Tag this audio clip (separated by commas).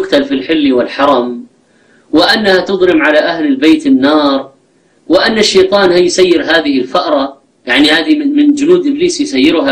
Speech